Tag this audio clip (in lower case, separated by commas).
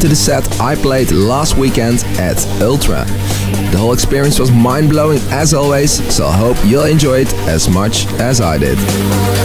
music, speech, exciting music